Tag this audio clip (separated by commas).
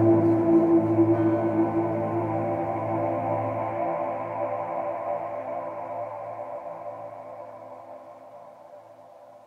Music